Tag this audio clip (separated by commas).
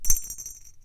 Bell